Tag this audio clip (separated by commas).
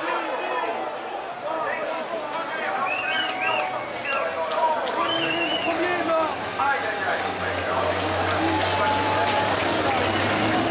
Truck, Vehicle, Speech